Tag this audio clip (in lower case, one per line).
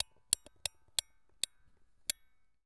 tick